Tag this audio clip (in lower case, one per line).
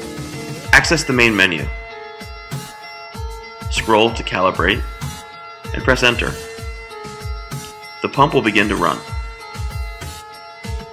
speech
music